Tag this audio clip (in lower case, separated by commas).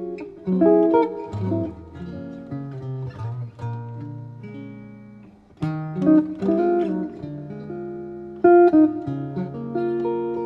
music, plucked string instrument, musical instrument, guitar